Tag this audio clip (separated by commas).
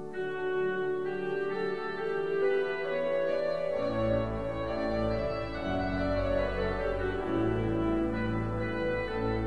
Music